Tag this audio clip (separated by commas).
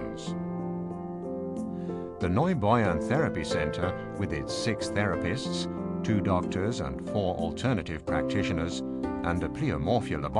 Music, Speech